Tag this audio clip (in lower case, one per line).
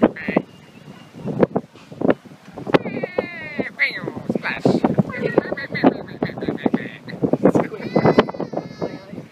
duck
quack